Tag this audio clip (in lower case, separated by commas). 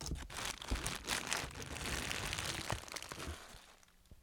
crumpling